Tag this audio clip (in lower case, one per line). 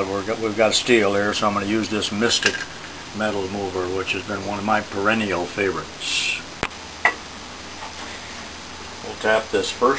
speech